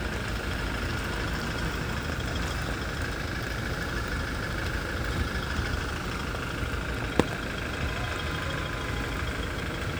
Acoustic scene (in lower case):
residential area